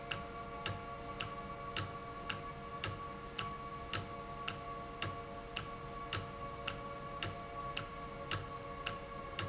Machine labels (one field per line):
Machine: valve